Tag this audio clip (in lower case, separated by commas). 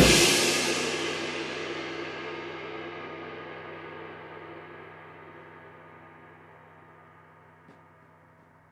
music, cymbal, percussion, crash cymbal, musical instrument